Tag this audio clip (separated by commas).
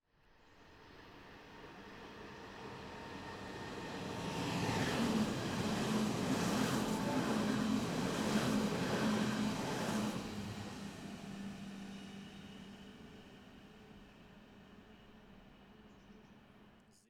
Rail transport, Vehicle, Train